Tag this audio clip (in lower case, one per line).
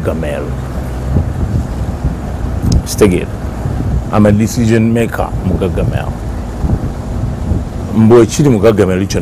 wind
wind noise (microphone)